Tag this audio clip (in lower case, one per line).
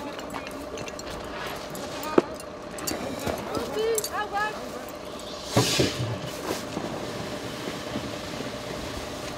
speech